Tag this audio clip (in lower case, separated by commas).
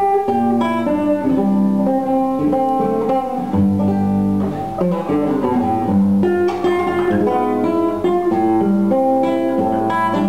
acoustic guitar, guitar, strum, plucked string instrument, music, musical instrument, playing acoustic guitar